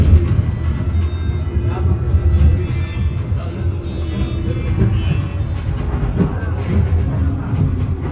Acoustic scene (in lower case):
bus